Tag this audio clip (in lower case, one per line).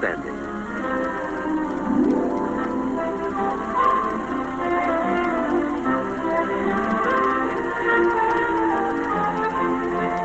speech
music